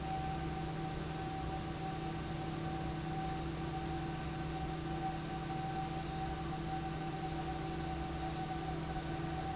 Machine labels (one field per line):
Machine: fan